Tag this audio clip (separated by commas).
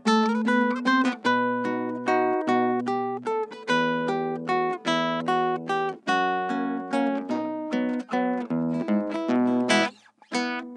Plucked string instrument, Music, Guitar, Musical instrument